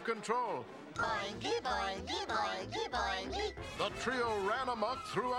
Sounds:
Music, Speech

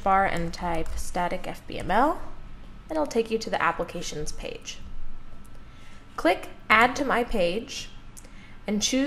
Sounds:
Speech

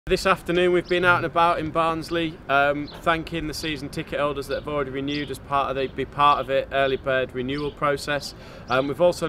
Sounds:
Speech

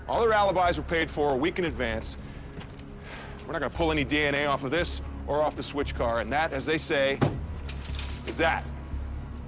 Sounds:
Sound effect, Music, Speech

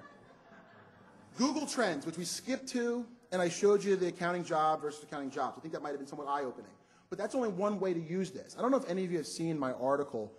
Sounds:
Speech

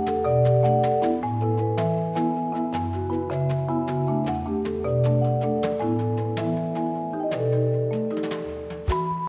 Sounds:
Music

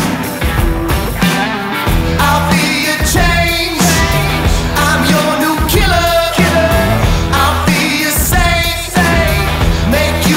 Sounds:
Music

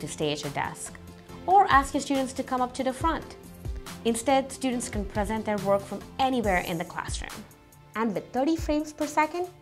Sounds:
Music, Speech

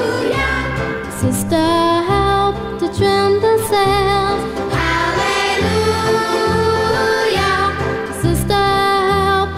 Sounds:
Music

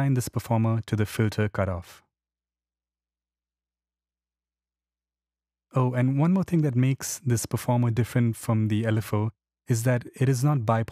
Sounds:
Speech

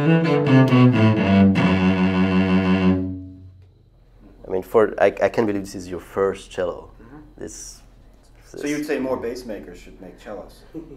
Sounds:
Speech, Music

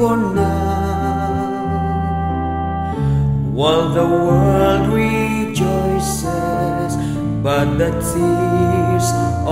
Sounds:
Music, Tender music

